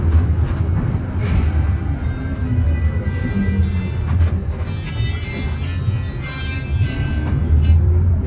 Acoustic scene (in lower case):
bus